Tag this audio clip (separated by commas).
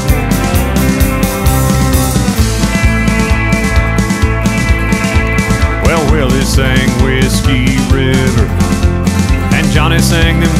Country, Music